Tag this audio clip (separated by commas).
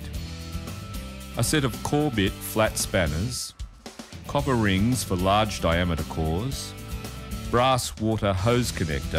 Music, Speech